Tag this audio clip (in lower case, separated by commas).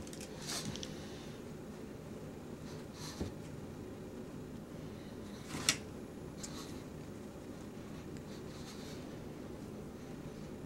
dog, animal, domestic animals